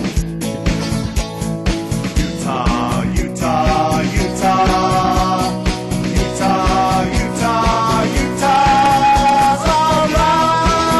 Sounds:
music
singing

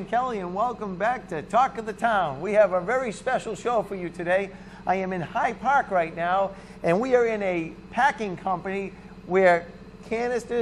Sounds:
speech

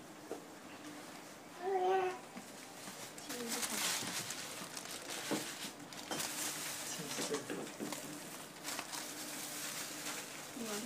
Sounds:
speech

